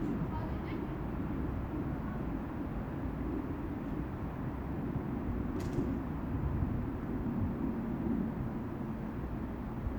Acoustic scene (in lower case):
residential area